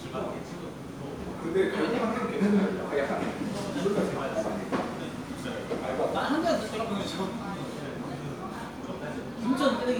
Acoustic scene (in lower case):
crowded indoor space